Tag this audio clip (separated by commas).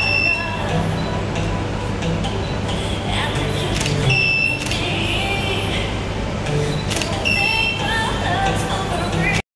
Music